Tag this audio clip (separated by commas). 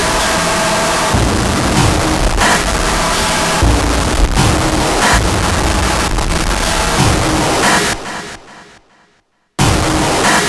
White noise